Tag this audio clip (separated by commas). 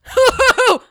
Human voice, Laughter